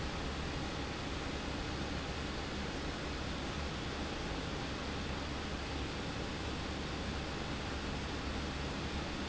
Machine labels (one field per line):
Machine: pump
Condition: abnormal